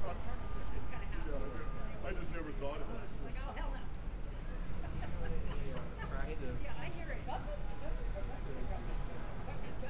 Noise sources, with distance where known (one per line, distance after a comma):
person or small group talking, near